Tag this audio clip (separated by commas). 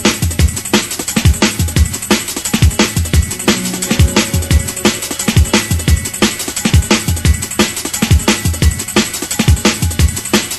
Music, Pop music